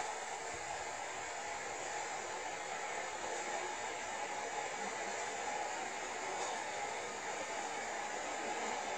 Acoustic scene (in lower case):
subway train